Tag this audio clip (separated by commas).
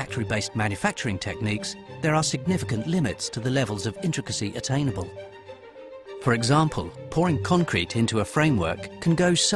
Music, Speech